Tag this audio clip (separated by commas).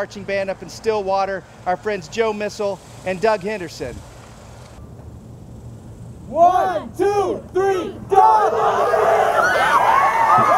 Crowd, Speech